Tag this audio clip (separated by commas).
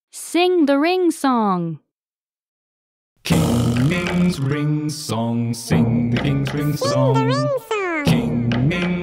Speech, Singing, Music